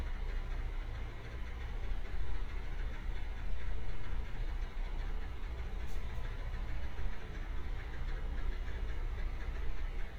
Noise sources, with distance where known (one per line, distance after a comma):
engine of unclear size, near